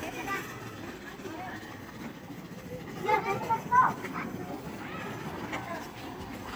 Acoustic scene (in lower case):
park